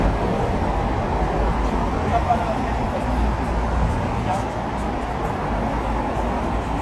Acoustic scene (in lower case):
street